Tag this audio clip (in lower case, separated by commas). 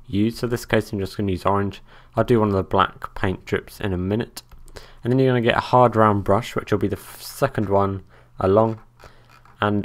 speech